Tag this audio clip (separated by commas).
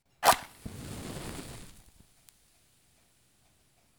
Fire